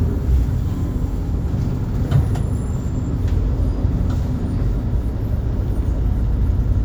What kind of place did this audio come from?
bus